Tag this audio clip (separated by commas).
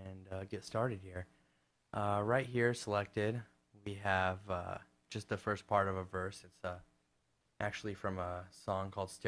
Speech